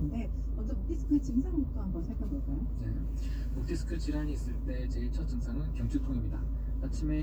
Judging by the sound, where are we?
in a car